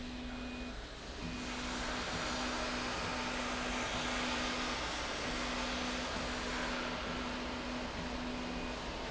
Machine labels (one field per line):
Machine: slide rail